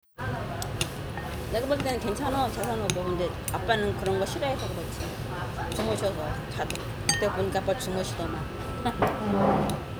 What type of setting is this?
restaurant